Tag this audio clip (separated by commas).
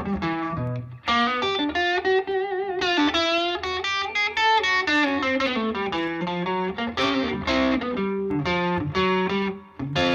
Electric guitar, Plucked string instrument, Guitar, Musical instrument, Music